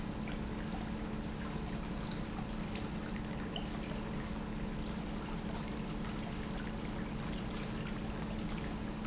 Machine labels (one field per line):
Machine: pump